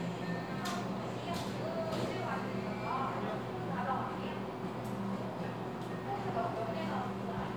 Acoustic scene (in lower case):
cafe